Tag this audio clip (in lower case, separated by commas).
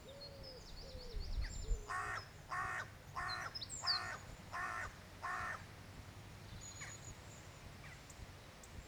wild animals, bird, animal, crow